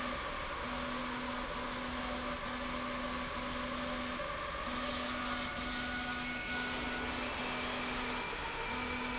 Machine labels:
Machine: slide rail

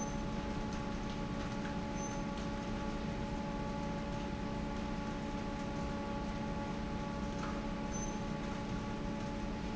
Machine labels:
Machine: fan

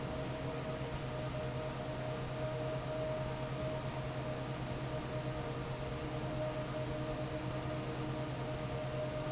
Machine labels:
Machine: fan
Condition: normal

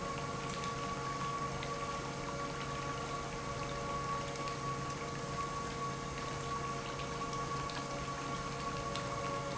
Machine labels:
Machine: pump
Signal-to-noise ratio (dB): -6 dB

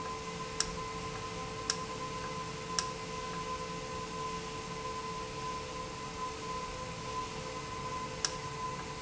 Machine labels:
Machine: valve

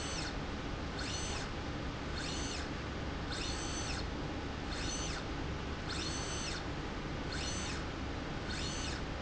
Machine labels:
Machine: slide rail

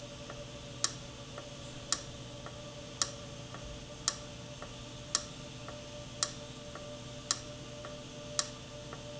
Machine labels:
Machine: valve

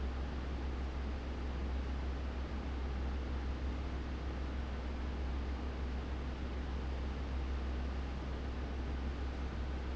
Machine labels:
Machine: fan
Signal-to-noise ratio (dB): 0 dB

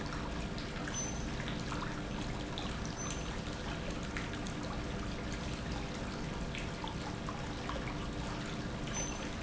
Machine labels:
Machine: pump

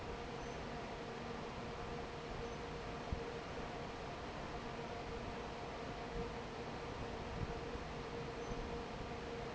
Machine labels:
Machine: fan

